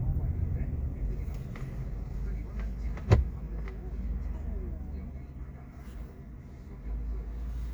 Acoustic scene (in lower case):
car